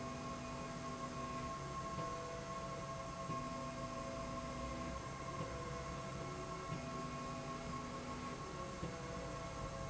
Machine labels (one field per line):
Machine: slide rail